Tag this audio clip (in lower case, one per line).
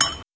glass